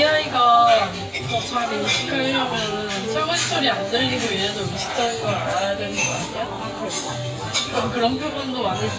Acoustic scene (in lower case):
restaurant